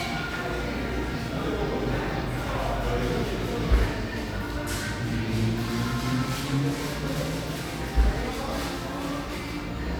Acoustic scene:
cafe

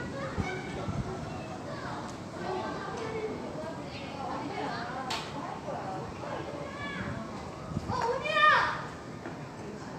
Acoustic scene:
park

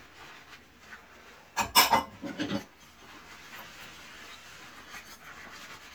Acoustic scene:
kitchen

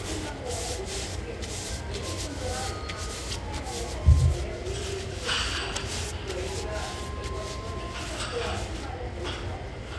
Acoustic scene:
restaurant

